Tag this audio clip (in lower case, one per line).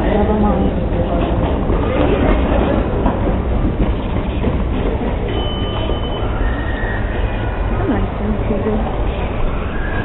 speech